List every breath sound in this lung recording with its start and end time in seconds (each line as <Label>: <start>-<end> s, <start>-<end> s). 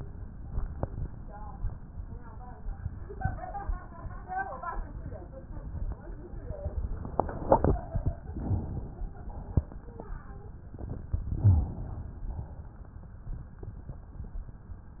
Inhalation: 8.37-9.26 s, 11.35-12.24 s
Exhalation: 9.32-10.21 s, 12.29-13.13 s